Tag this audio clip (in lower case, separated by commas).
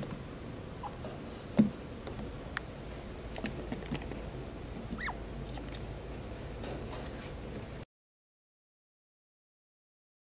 chinchilla barking